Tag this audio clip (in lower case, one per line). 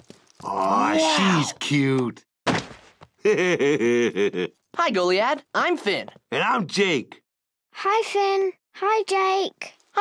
speech